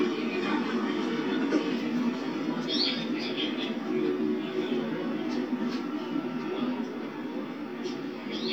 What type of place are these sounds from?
park